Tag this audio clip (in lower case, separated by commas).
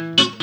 plucked string instrument, guitar, musical instrument, music